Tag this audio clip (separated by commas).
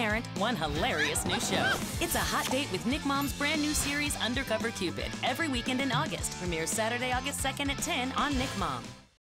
Speech, Music